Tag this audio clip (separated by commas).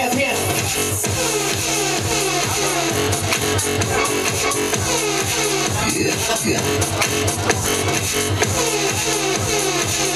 Speech, Music